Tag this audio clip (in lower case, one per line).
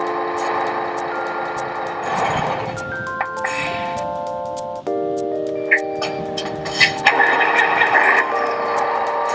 chime
music